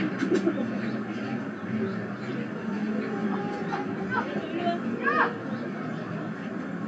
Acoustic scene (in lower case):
residential area